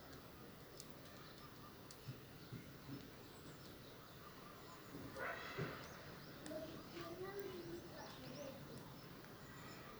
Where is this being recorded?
in a park